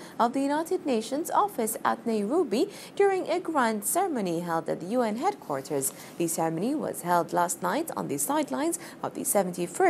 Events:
0.0s-0.2s: breathing
0.0s-9.8s: background noise
0.2s-2.7s: female speech
2.7s-2.9s: breathing
3.0s-5.8s: female speech
5.9s-6.1s: breathing
6.2s-8.7s: female speech
8.7s-9.0s: breathing
9.0s-9.8s: female speech

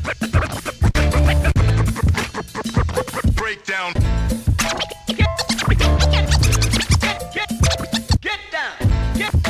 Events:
0.0s-9.4s: music
3.4s-3.9s: male speech
5.2s-5.3s: male speech
7.0s-7.1s: male speech
7.4s-7.4s: male speech
8.3s-8.7s: male speech
9.2s-9.3s: male speech

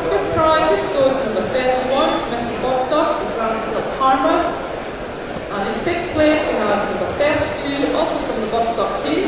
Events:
0.0s-3.1s: woman speaking
0.0s-9.2s: hubbub
0.0s-9.2s: mechanisms
0.1s-0.3s: thud
0.1s-0.3s: squeak
0.6s-0.9s: squeak
1.1s-1.2s: squeak
1.1s-1.2s: thud
1.7s-2.1s: squeak
2.4s-2.5s: squeak
2.7s-2.9s: squeak
3.3s-4.5s: woman speaking
5.5s-9.2s: woman speaking
5.7s-6.1s: thud
6.3s-6.5s: squeak
6.3s-6.5s: thud
6.7s-6.9s: squeak
7.0s-7.2s: thud
7.3s-7.4s: thud
7.6s-7.7s: squeak
8.0s-8.2s: squeak
8.7s-8.7s: squeak
9.0s-9.1s: squeak

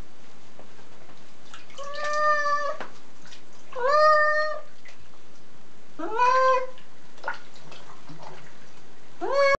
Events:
0.0s-9.4s: mechanisms
0.5s-1.2s: rub
1.5s-2.3s: liquid
1.7s-2.7s: cat
2.8s-3.0s: rub
2.8s-3.0s: liquid
3.2s-3.6s: liquid
3.2s-3.5s: rub
3.7s-4.2s: liquid
3.7s-4.6s: cat
4.3s-4.5s: liquid
4.7s-4.9s: liquid
5.3s-5.4s: liquid
6.0s-6.8s: cat
6.2s-6.5s: liquid
7.1s-8.9s: liquid
7.5s-8.9s: rub
9.1s-9.3s: liquid
9.2s-9.4s: cat

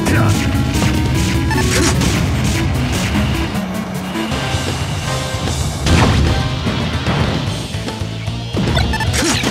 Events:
0.0s-0.3s: human voice
0.0s-9.5s: music
0.0s-9.5s: video game sound
0.0s-1.5s: sound effect
1.5s-1.7s: bleep
1.7s-2.7s: sound effect
1.7s-2.0s: human voice
2.8s-3.5s: sound effect
5.8s-6.2s: sound effect
7.0s-7.5s: sound effect
8.7s-9.0s: bleep
9.1s-9.4s: human voice
9.2s-9.5s: sound effect

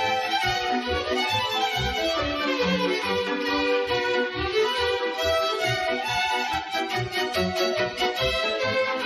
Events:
0.0s-9.0s: music

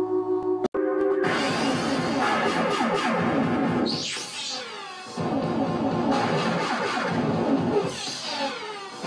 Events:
0.0s-0.7s: music
0.4s-0.5s: tick
0.8s-9.0s: music
1.0s-1.1s: tick
1.2s-5.2s: sound effect
6.1s-7.3s: sound effect
7.7s-9.0s: sound effect

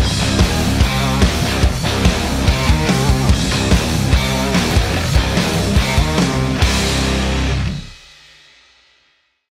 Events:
0.0s-9.5s: music

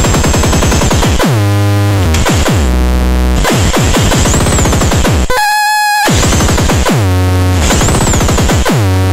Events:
0.0s-9.1s: sound effect

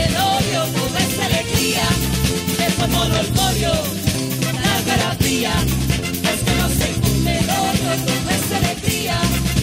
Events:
0.0s-2.0s: female singing
0.0s-9.6s: music
2.4s-3.9s: female singing
2.9s-3.9s: male singing
4.3s-5.6s: female singing
4.3s-5.6s: male singing
6.2s-6.9s: male singing
6.2s-9.4s: female singing

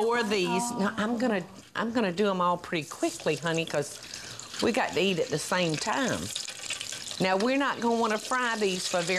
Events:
0.0s-9.1s: background noise
0.0s-9.1s: conversation
3.3s-9.1s: frying (food)
7.2s-9.1s: female speech

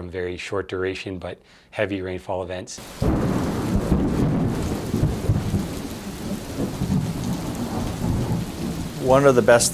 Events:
0.0s-1.3s: male speech
1.4s-1.7s: breathing
1.7s-2.7s: male speech
2.7s-9.7s: rain
3.0s-9.7s: thunder
8.9s-9.7s: male speech

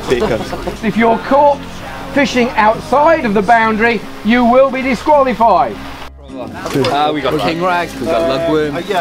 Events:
0.0s-0.4s: man speaking
0.0s-0.8s: laughter
0.0s-9.0s: music
0.8s-1.6s: man speaking
2.1s-4.0s: man speaking
4.3s-5.9s: man speaking
6.2s-7.8s: man speaking
6.6s-7.0s: generic impact sounds
8.0s-9.0s: man speaking

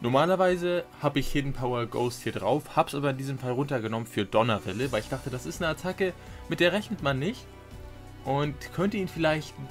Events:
0.0s-0.8s: man speaking
0.0s-9.7s: music
1.0s-6.1s: man speaking
6.2s-6.4s: breathing
6.5s-7.4s: man speaking
6.9s-7.0s: tick
8.3s-9.7s: man speaking

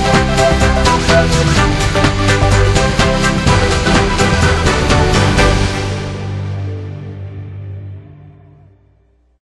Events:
0.0s-9.4s: music

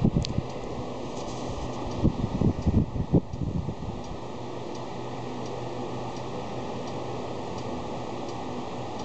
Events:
0.0s-0.4s: wind noise (microphone)
0.0s-9.0s: mechanisms
0.2s-0.3s: tick
0.5s-0.6s: tick
0.7s-2.0s: surface contact
1.9s-2.0s: tick
2.0s-4.0s: wind noise (microphone)
2.6s-2.7s: tick
3.3s-3.4s: tick
4.0s-4.1s: tick
4.7s-4.8s: tick
5.5s-5.5s: tick
6.2s-6.2s: tick
6.9s-7.0s: tick
7.6s-7.7s: tick
8.3s-8.4s: tick

